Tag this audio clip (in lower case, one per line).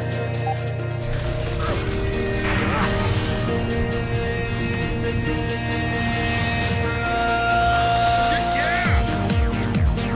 speech
music